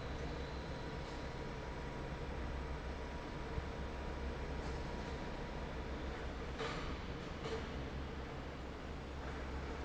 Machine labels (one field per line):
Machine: fan